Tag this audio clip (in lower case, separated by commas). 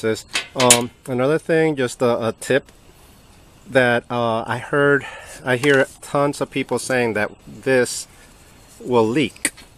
speech